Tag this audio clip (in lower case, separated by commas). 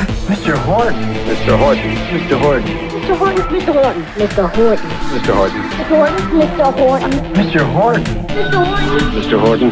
music, speech